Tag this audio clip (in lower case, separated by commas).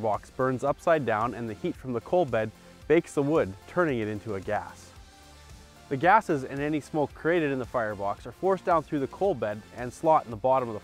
speech, music